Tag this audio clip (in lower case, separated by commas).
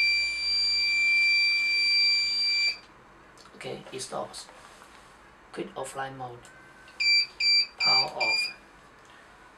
inside a small room, smoke alarm, speech